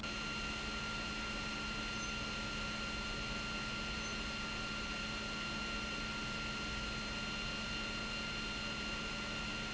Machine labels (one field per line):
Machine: pump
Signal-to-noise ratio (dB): 0 dB